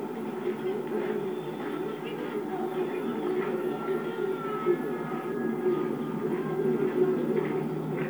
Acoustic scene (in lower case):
park